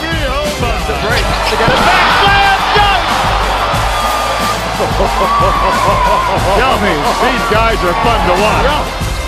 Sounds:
music, speech

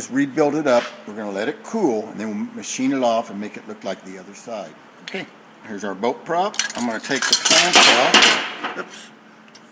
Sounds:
speech

